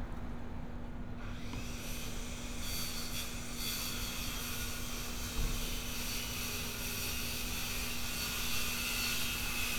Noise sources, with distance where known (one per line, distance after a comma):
small or medium rotating saw, near